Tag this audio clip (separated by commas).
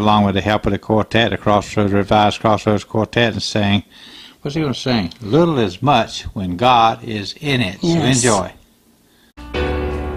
Music, Speech